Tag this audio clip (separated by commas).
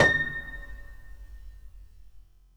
Music, Musical instrument, Keyboard (musical), Piano